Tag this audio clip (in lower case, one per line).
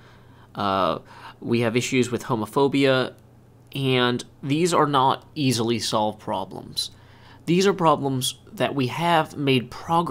speech